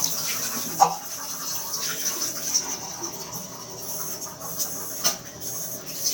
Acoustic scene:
restroom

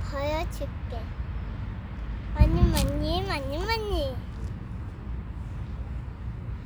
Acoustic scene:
residential area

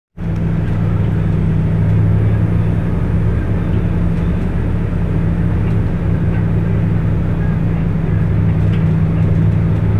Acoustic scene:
bus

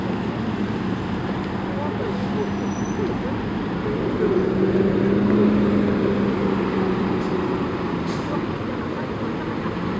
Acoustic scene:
street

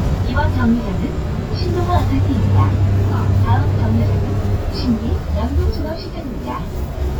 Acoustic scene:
bus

